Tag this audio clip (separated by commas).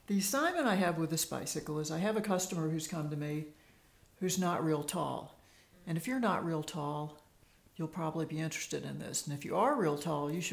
Speech